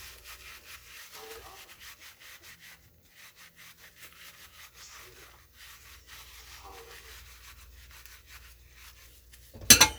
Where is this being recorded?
in a kitchen